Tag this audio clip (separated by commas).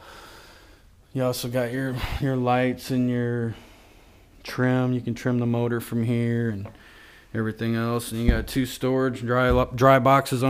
Speech